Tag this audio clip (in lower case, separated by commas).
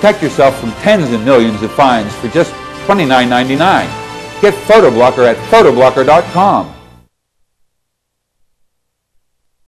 speech, music